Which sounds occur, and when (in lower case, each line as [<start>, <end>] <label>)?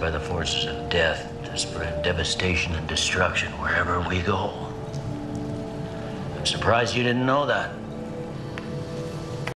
[0.00, 0.74] male speech
[0.00, 9.51] music
[0.87, 1.29] male speech
[1.41, 1.89] male speech
[1.99, 4.60] male speech
[2.59, 2.80] generic impact sounds
[3.41, 3.50] generic impact sounds
[4.89, 4.97] generic impact sounds
[5.34, 5.82] generic impact sounds
[6.41, 7.76] male speech
[8.55, 8.59] generic impact sounds
[9.44, 9.49] generic impact sounds